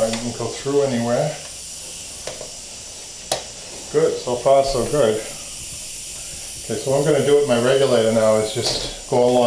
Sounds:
speech

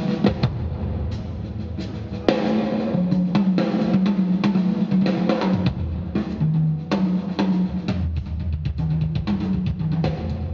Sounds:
music

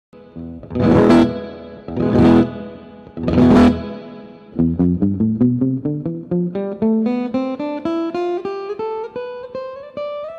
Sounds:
musical instrument, plucked string instrument, guitar, music, flamenco

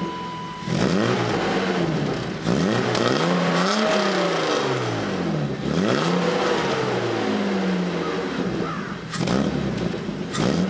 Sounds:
vehicle, car, accelerating

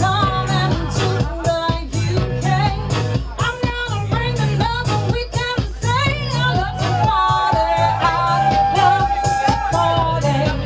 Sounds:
music

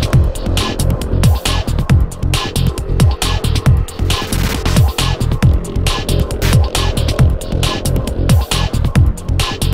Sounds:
music

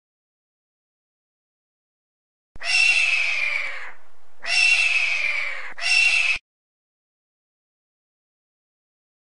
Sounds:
honk

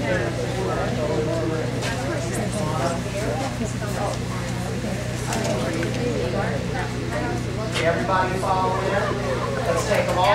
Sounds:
speech

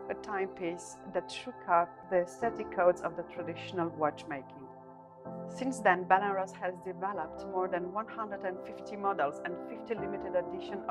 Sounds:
speech, music

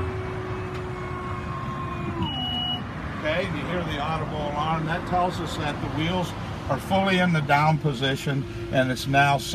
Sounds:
vehicle, speech, outside, urban or man-made

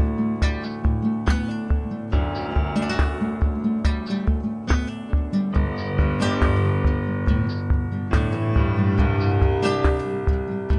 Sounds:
music

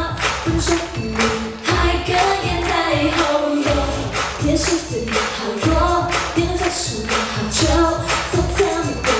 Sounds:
female singing, music, choir

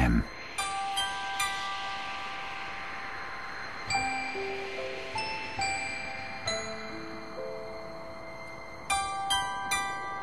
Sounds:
mallet percussion, marimba, glockenspiel

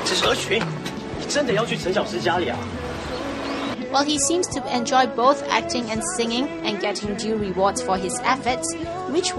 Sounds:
music, speech, male singing

